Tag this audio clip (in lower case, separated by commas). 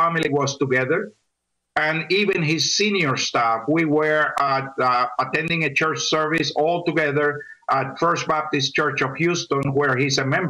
speech